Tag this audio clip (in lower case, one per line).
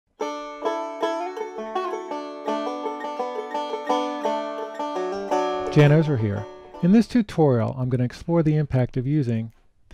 banjo